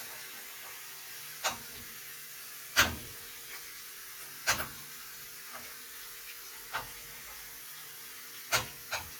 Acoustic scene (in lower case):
kitchen